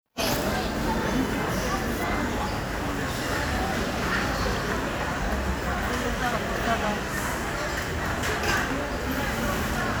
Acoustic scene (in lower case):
crowded indoor space